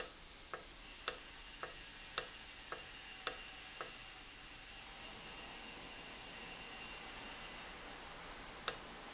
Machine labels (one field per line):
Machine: valve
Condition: normal